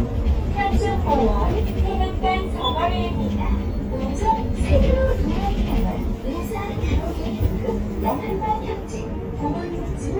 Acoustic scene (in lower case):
bus